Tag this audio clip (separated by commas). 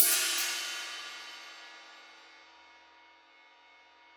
Music, Musical instrument, Cymbal, Percussion, Hi-hat